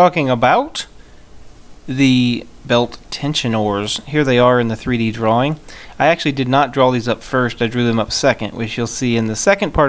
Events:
[0.00, 0.92] man speaking
[0.00, 9.85] mechanisms
[0.95, 1.27] breathing
[1.86, 2.47] man speaking
[2.65, 2.98] man speaking
[3.09, 3.93] man speaking
[4.06, 5.56] man speaking
[5.65, 5.90] breathing
[5.98, 7.09] man speaking
[7.22, 9.85] man speaking
[7.88, 7.98] tick

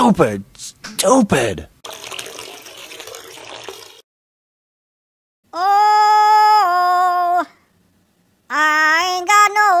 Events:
[0.00, 0.66] man speaking
[0.00, 1.74] background noise
[0.74, 0.91] generic impact sounds
[0.90, 1.61] man speaking
[1.75, 3.90] water
[5.35, 9.80] mechanisms
[5.43, 7.47] singing
[8.41, 9.80] singing

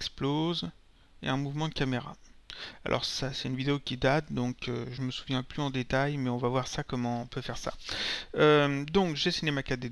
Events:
[0.00, 9.91] mechanisms
[0.01, 0.68] man speaking
[1.14, 2.31] man speaking
[2.40, 2.79] breathing
[2.79, 7.74] man speaking
[7.78, 8.23] breathing
[8.28, 9.91] man speaking

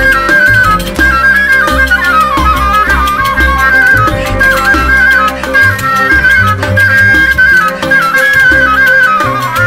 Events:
[0.00, 9.65] music

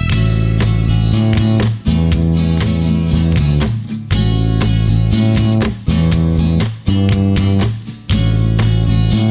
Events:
[0.00, 9.30] music

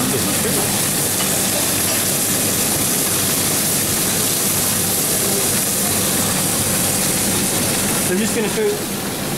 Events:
[0.00, 9.35] mechanisms
[0.00, 9.35] sizzle
[1.08, 1.55] man speaking
[1.68, 2.16] man speaking
[2.40, 2.64] man speaking
[3.18, 3.58] man speaking
[3.86, 4.03] man speaking
[7.17, 7.40] man speaking

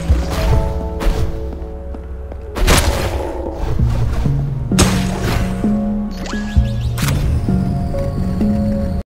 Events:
[0.00, 0.68] sound effect
[0.00, 8.98] video game sound
[0.00, 8.99] music
[0.97, 1.35] sound effect
[1.47, 1.58] tap
[1.84, 1.94] tap
[2.24, 2.32] tap
[2.52, 4.40] sound effect
[4.69, 5.69] sound effect
[6.07, 8.98] sound effect

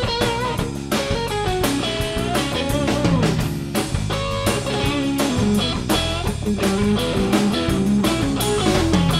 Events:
[0.00, 9.15] music

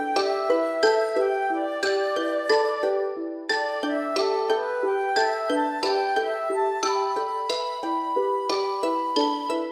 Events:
[0.00, 9.71] music

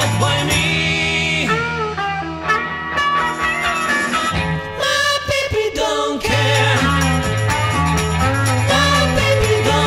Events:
[0.00, 9.85] music
[0.16, 1.40] male singing
[4.74, 6.79] male singing
[8.66, 9.85] male singing

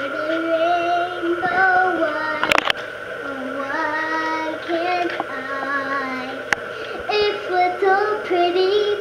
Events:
[0.00, 2.50] child singing
[0.00, 9.00] mechanisms
[1.36, 1.88] generic impact sounds
[2.37, 2.75] generic impact sounds
[3.21, 6.43] child singing
[4.19, 4.32] tick
[4.58, 4.83] generic impact sounds
[5.01, 5.26] generic impact sounds
[5.58, 5.69] generic impact sounds
[6.49, 6.58] tick
[6.69, 6.98] breathing
[6.83, 7.28] generic impact sounds
[7.04, 9.00] child singing

